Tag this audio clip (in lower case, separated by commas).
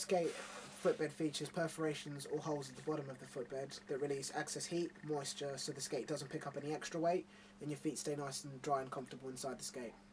speech